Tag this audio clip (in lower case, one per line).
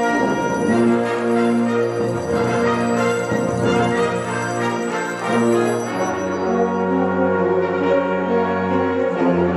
orchestra
music